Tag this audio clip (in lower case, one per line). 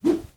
swish